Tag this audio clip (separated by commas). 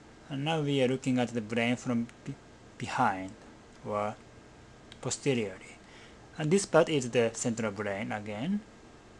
Speech